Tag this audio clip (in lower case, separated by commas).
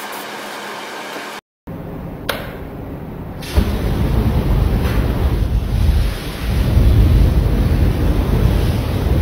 spray, waves